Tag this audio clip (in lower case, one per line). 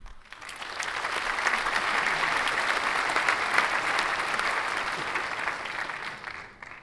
applause
human group actions
crowd